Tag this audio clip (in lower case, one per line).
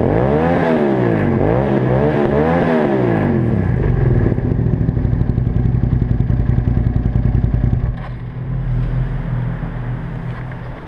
clatter